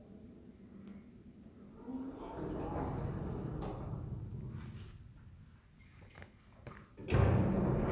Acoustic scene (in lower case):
elevator